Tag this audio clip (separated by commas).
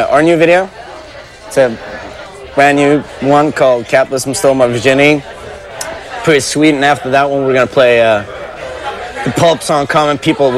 Speech